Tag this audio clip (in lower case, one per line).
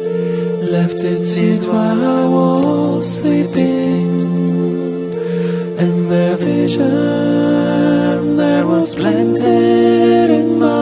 music